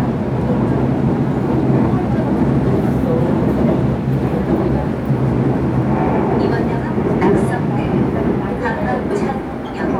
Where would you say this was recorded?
on a subway train